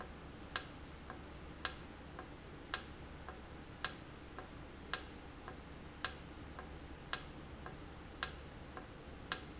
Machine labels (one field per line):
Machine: valve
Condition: normal